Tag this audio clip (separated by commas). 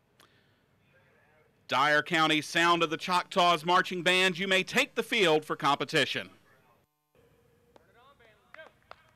Speech